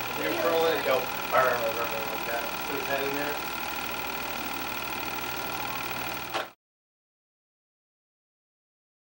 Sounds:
Speech

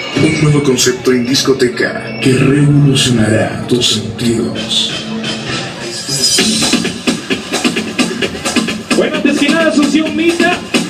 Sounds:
Speech, Music

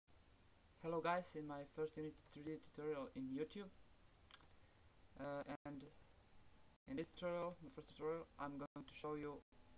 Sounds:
Speech

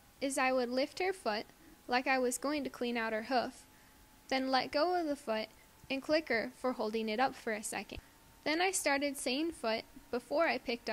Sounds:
Speech

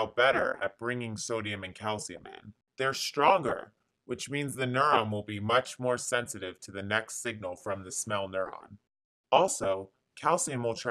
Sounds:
Speech, Narration

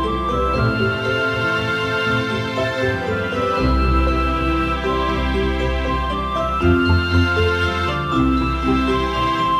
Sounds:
Theme music, Tender music, Music

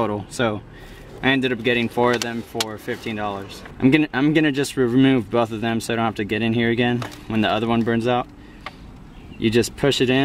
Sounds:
Speech

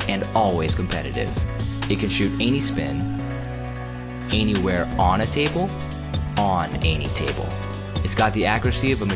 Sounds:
Music, Speech

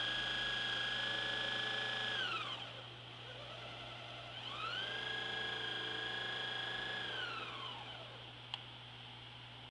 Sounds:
Engine, Medium engine (mid frequency)

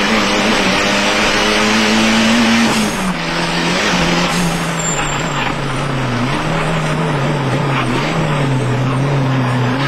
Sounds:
Car, Vehicle

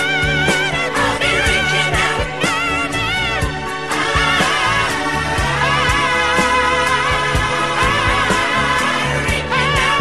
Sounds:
Music

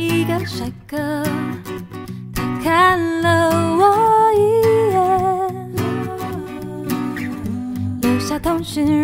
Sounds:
Music

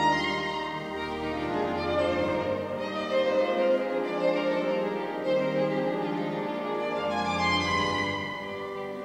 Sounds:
Music, Musical instrument, Violin

